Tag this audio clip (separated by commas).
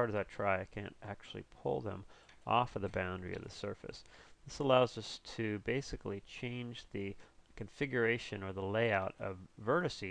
Speech